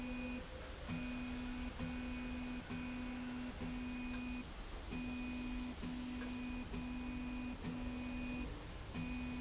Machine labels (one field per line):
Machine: slide rail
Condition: normal